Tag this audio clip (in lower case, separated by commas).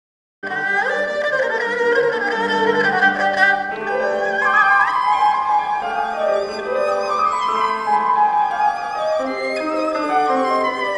playing erhu